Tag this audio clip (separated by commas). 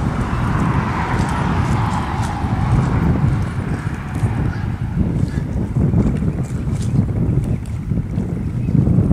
Clip-clop, horse clip-clop, Animal, Horse, Speech